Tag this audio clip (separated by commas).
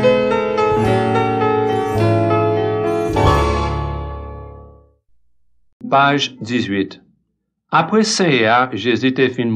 Music, inside a small room, Speech